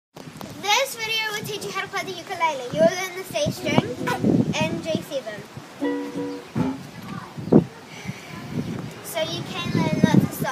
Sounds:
playing ukulele

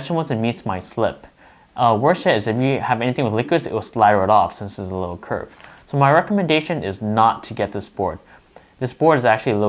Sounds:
Speech

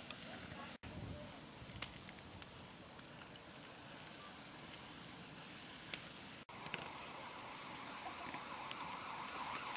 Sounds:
Vehicle

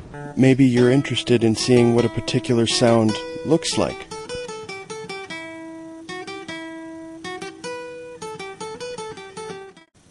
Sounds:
Speech, Music

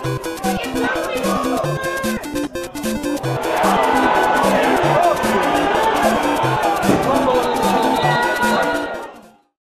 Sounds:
Music, Speech

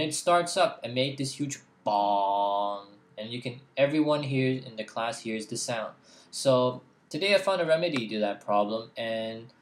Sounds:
Speech

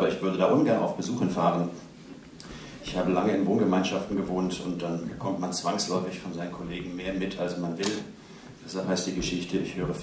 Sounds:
Speech

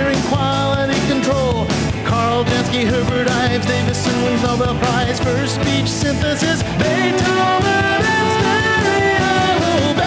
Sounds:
Music

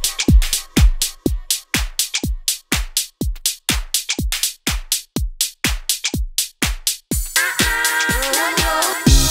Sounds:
Music

